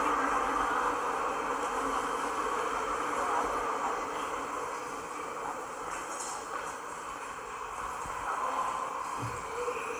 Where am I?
in a subway station